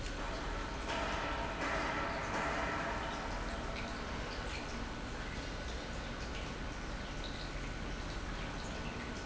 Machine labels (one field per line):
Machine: pump